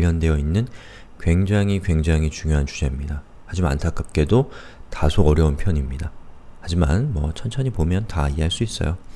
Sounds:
Speech

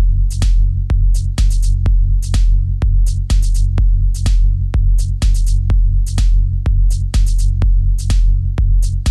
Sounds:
Electronic music, Music, Techno

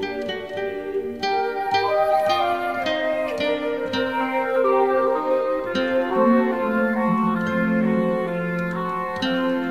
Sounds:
Music, Pizzicato

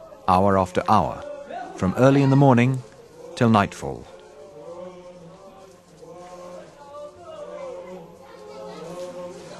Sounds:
Speech

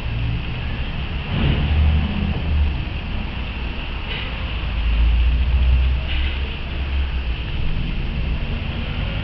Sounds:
outside, urban or man-made

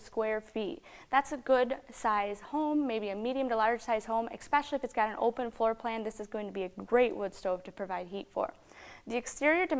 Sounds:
Speech

